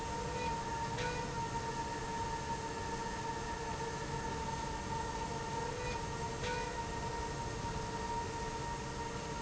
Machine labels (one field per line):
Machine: slide rail